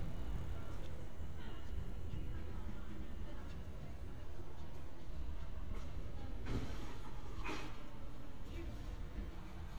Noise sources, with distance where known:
background noise

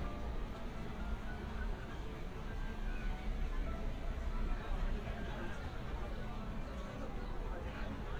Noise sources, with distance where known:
music from a fixed source, near
person or small group talking

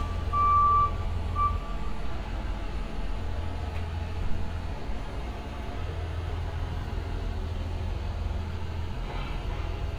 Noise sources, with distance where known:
large-sounding engine, near
reverse beeper, near

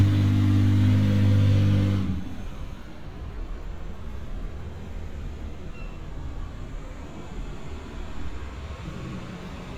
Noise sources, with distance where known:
large-sounding engine, near

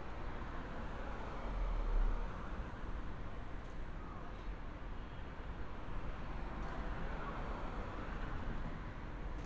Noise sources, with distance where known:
medium-sounding engine, far

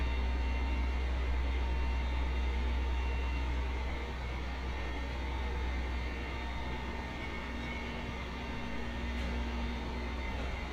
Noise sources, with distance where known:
unidentified impact machinery

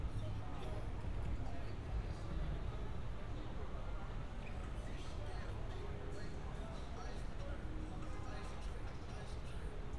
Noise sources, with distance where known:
person or small group talking, far

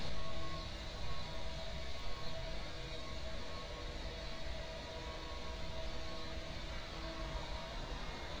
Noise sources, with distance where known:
unidentified alert signal, far

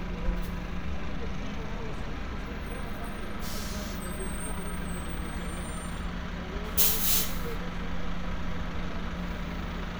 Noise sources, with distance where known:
large-sounding engine, near

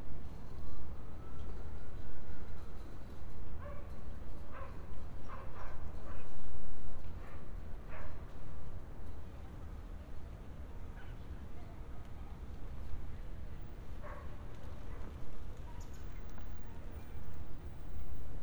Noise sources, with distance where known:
dog barking or whining, far

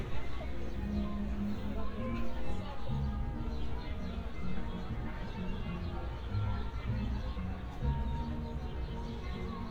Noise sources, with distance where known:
unidentified human voice, far

